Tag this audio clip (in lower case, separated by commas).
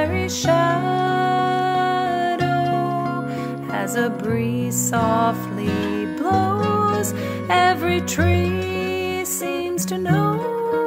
lullaby, music